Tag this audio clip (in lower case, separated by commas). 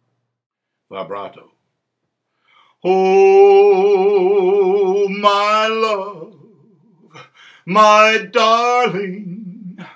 male singing, speech